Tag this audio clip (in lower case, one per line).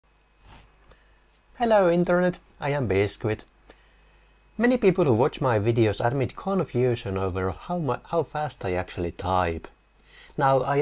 speech